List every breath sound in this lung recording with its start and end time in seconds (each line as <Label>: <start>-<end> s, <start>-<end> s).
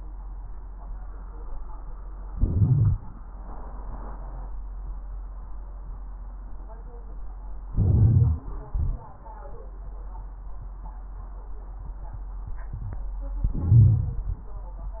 Inhalation: 2.28-3.13 s, 7.71-8.56 s, 13.42-14.46 s
Exhalation: 8.62-9.14 s
Crackles: 2.28-3.13 s, 7.71-8.56 s, 8.62-9.14 s, 13.42-14.46 s